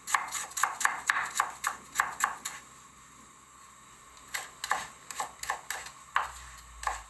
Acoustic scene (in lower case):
kitchen